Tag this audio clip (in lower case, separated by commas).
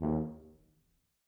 brass instrument, musical instrument, music